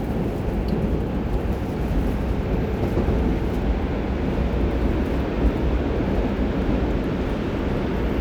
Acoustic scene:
subway train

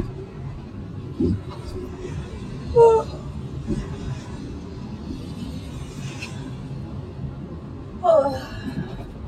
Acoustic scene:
car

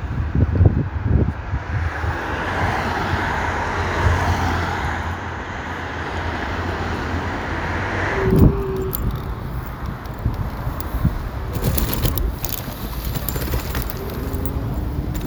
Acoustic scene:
street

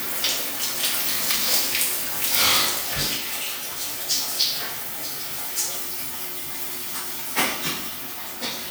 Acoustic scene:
restroom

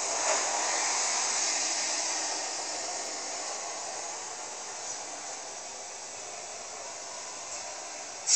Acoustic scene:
street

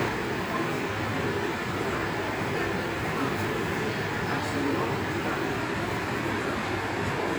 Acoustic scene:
subway station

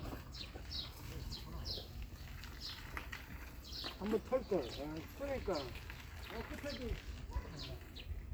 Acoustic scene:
park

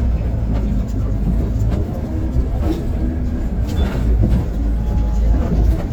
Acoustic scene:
bus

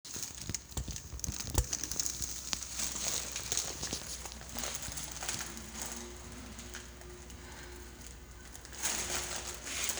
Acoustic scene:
elevator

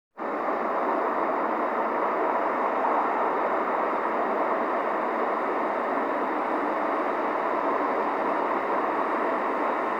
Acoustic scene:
street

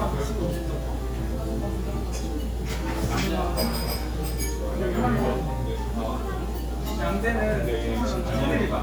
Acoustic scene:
crowded indoor space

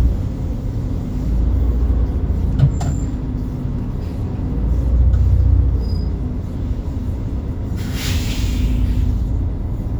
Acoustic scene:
bus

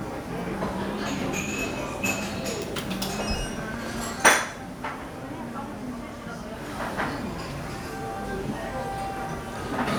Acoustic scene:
restaurant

